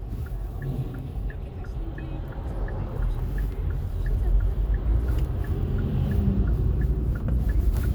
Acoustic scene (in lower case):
car